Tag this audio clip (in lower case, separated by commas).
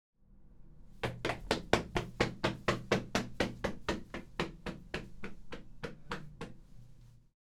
run